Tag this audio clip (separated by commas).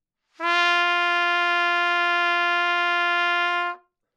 Music, Trumpet, Musical instrument, Brass instrument